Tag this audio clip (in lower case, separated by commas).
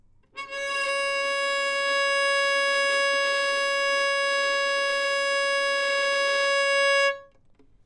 bowed string instrument, music, musical instrument